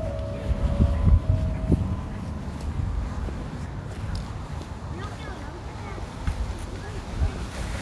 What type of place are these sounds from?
residential area